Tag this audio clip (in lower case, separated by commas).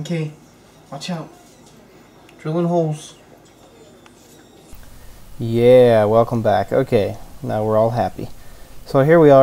speech